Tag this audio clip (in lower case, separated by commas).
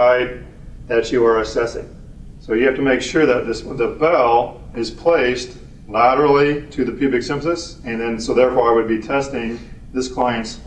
speech